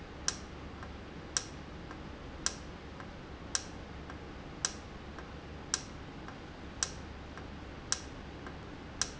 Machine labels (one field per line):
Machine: valve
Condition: normal